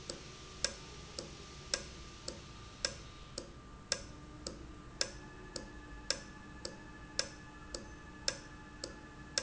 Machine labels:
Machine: valve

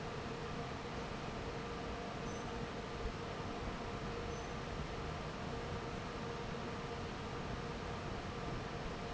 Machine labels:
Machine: fan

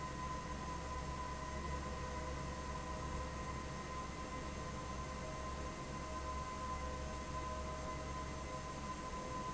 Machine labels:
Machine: fan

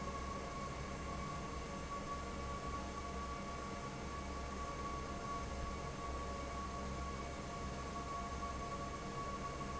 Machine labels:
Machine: fan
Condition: normal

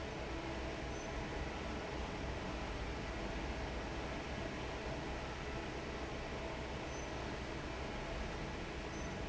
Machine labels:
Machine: fan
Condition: normal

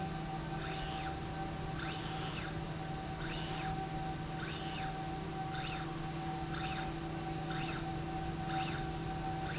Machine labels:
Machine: slide rail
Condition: normal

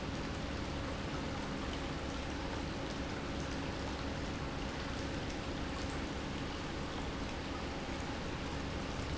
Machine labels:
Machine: pump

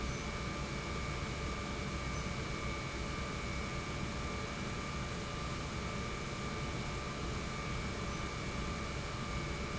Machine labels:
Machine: pump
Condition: normal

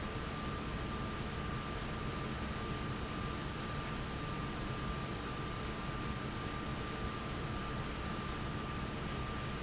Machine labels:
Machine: fan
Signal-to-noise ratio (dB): -6 dB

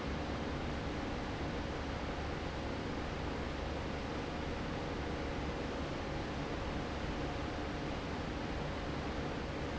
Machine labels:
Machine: fan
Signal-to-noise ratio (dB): -6 dB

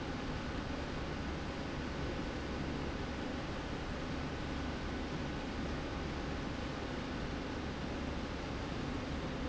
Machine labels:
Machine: slide rail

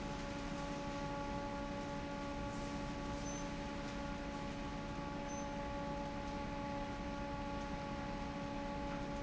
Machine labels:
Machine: fan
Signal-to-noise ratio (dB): 0 dB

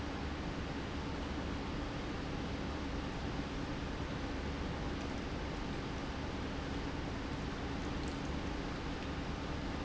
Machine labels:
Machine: pump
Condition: normal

